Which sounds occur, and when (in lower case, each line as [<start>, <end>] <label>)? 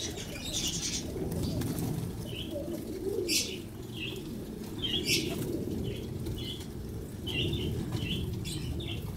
[0.00, 9.15] background noise
[4.74, 9.15] coo
[5.35, 6.09] flapping wings